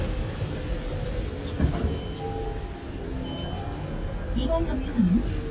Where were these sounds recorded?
on a bus